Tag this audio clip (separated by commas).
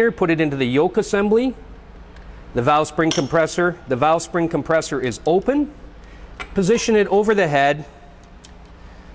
Speech